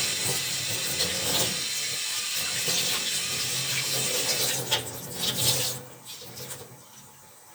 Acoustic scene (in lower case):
kitchen